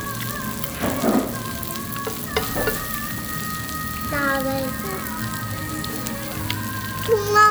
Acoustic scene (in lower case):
restaurant